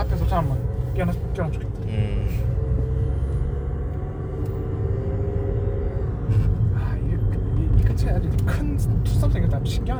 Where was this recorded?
in a car